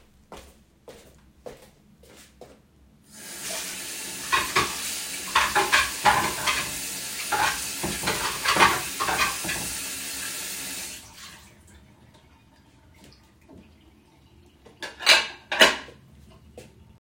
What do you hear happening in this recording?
I walked across the kitchen to the sink. I poured water on the dishes to clean them. I put the dishes in the dish rack.